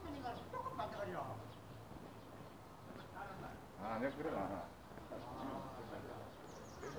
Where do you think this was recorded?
in a residential area